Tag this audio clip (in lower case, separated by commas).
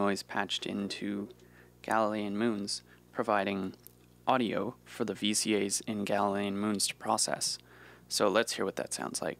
speech